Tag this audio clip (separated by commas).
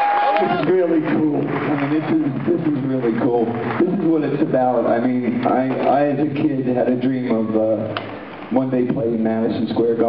Speech